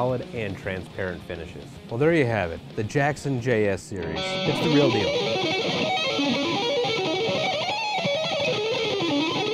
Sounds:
Guitar, Music, Speech, Musical instrument, Heavy metal, Plucked string instrument

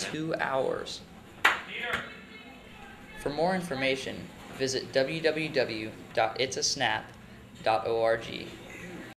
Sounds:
Clapping, Speech

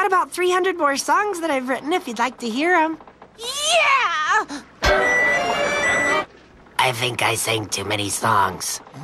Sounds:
Speech

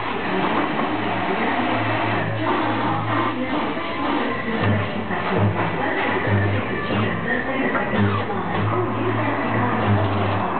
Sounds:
Music, Speech

